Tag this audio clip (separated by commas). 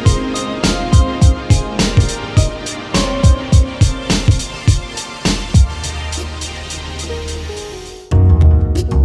Music, Sampler